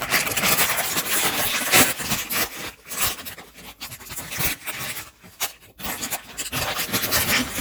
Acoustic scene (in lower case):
kitchen